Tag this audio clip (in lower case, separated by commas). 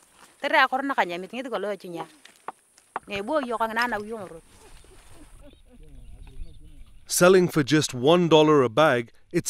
speech